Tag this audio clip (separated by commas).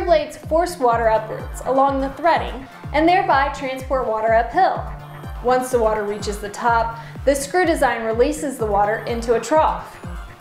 Music, Speech